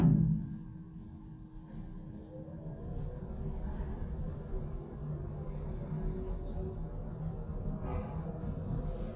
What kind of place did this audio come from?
elevator